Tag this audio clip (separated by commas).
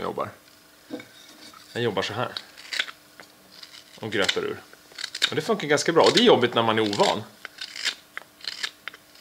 Filing (rasp), Rub, Wood